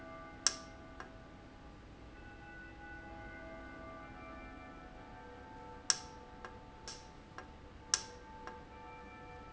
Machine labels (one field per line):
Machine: valve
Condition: normal